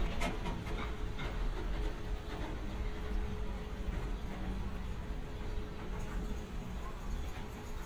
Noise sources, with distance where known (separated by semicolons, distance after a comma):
non-machinery impact